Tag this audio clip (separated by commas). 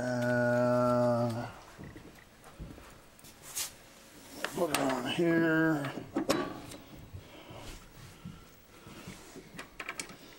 Speech